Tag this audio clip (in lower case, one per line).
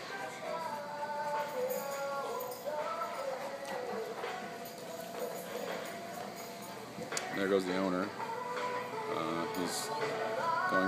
speech
music